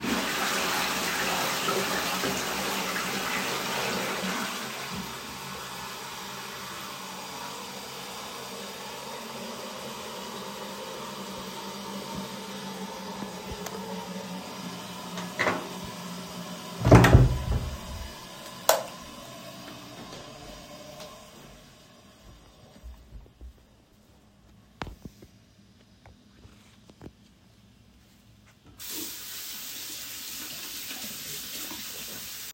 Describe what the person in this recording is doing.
I flushed the toliet, then opened the door and closed the light. Then I walked to the sink and placed my phone down to wash my hands.